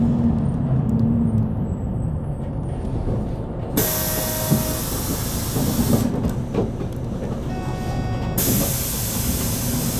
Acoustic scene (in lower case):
bus